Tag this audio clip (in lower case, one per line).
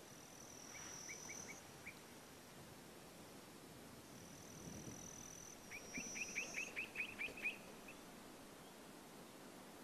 animal
outside, rural or natural